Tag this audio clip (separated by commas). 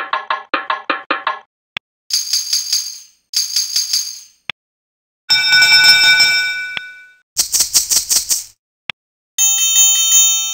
Music, Musical instrument